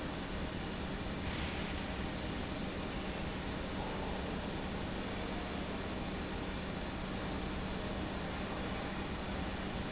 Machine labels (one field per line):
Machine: pump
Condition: normal